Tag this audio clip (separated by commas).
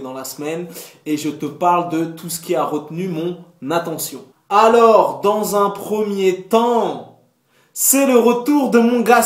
Speech